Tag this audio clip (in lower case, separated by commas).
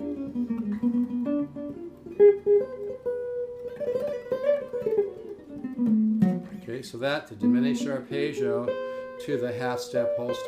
musical instrument, music, plucked string instrument, guitar, tapping (guitar technique)